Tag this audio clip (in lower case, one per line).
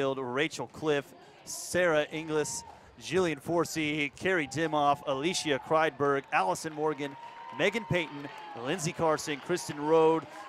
inside a public space
speech